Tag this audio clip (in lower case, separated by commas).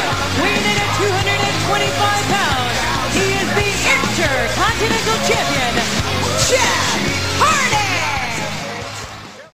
speech, music